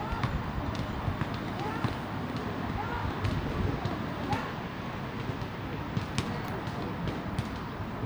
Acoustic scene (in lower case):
residential area